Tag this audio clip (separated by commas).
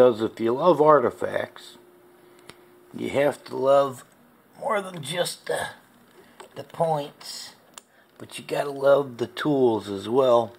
Speech